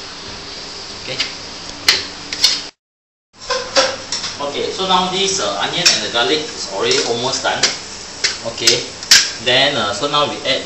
A man is speaking and clanging pots and pans together